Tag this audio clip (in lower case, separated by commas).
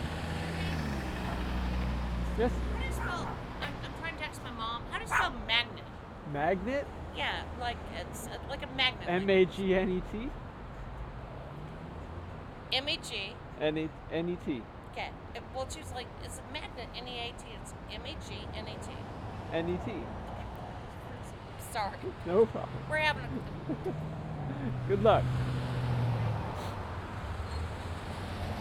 animal, dog, domestic animals